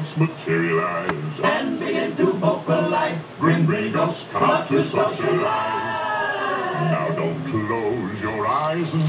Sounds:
Male singing

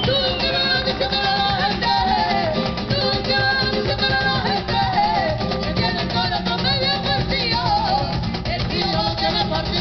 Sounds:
Music, Flamenco, Musical instrument, Music of Latin America

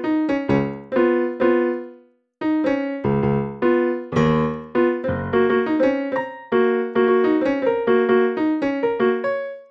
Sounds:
Music

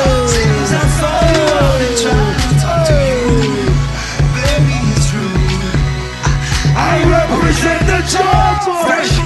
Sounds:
Music

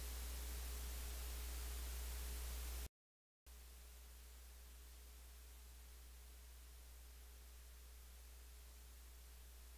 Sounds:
White noise

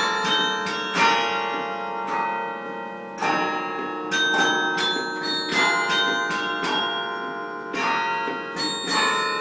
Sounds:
Bell, Musical instrument, Music

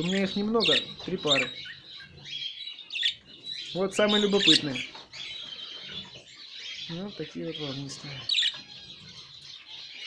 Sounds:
canary calling

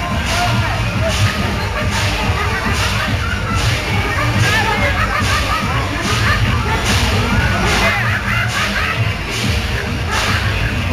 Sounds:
Music, Speech

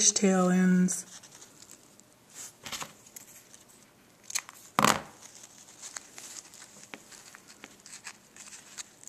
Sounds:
inside a small room, Speech

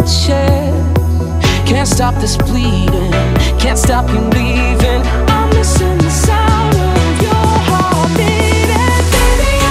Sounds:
Music

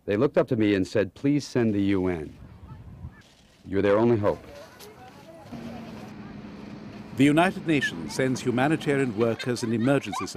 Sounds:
Speech

